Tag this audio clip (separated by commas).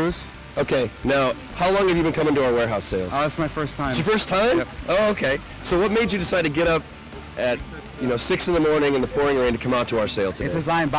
Music, Speech